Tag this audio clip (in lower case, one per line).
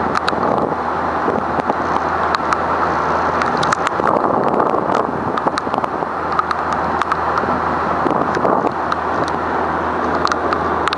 boat
vehicle
motorboat